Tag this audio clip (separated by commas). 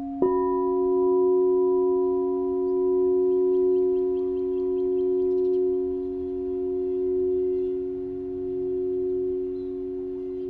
singing bowl